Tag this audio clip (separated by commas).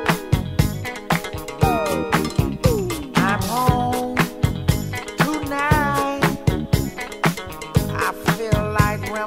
Funk, Music